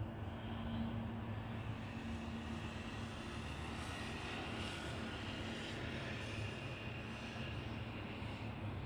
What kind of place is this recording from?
residential area